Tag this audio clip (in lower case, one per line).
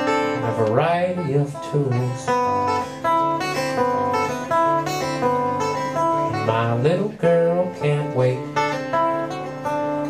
music